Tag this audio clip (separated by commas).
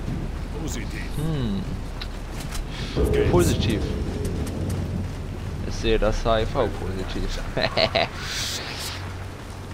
Speech